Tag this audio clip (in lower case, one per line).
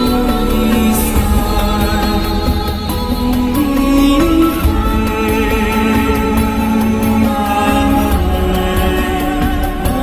mantra